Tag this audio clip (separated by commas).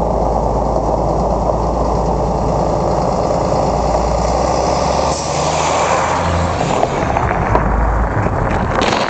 Vehicle, Truck